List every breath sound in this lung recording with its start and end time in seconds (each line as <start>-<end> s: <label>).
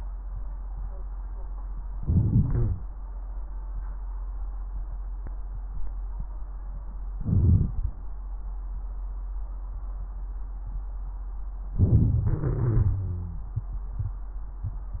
1.94-2.82 s: inhalation
2.43-2.82 s: wheeze
7.23-7.75 s: inhalation
11.74-12.26 s: inhalation
12.26-13.50 s: exhalation
12.26-13.50 s: wheeze